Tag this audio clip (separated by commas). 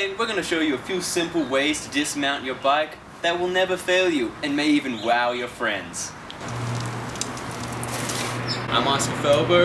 Speech, Bicycle, Vehicle